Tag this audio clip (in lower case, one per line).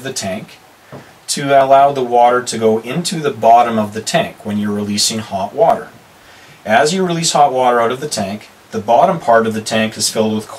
speech